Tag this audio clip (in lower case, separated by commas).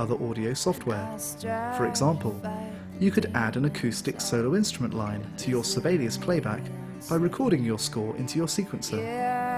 music, speech